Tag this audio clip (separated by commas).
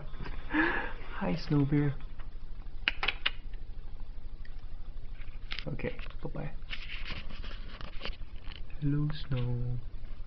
Speech